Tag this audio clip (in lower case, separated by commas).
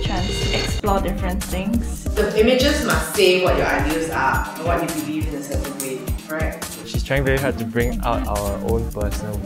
music, speech